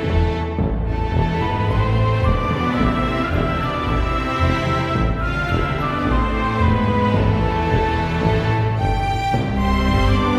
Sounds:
theme music, music

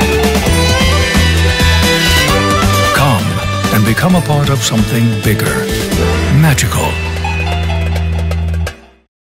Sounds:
speech, music

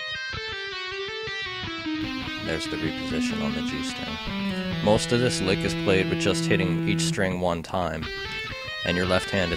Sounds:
speech, music

